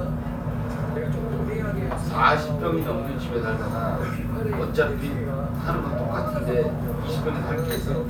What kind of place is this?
restaurant